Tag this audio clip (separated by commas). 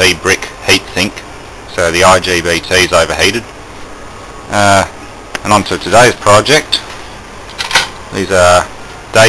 Speech